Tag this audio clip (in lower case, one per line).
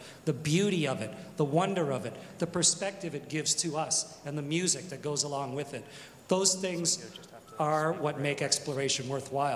speech